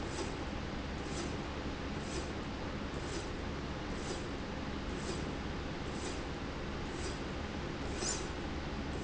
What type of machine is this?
slide rail